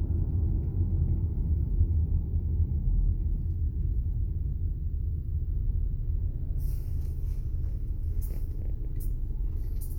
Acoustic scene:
car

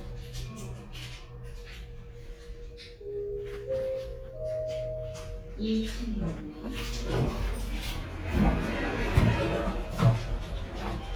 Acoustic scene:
elevator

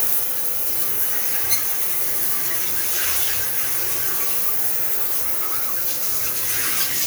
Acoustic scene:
restroom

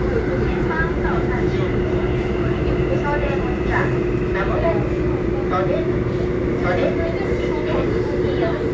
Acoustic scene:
subway train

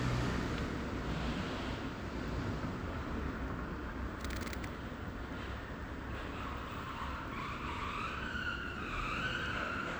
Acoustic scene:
residential area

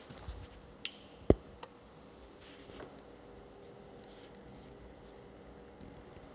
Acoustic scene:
elevator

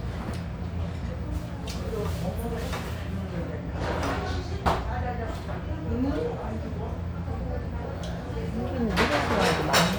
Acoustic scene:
restaurant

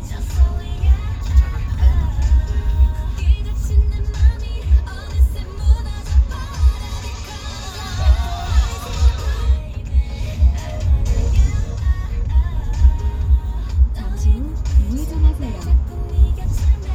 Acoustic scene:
car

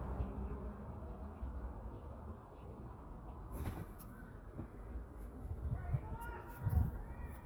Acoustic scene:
residential area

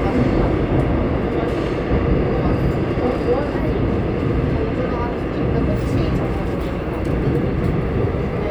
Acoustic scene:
subway train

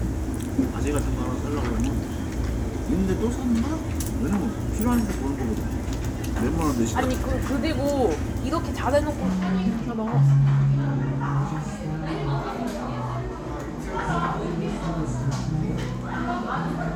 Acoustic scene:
crowded indoor space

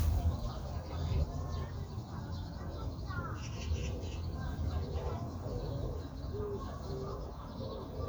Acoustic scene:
park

